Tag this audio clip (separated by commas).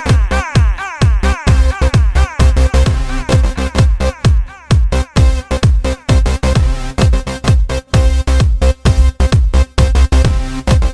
Music